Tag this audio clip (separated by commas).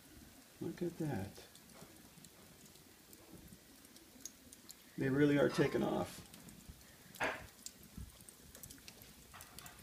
Fire